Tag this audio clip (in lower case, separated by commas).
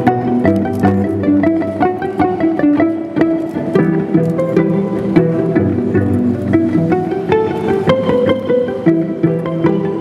inside a small room, music